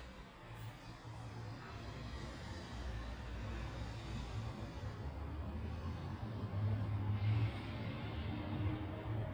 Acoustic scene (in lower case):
residential area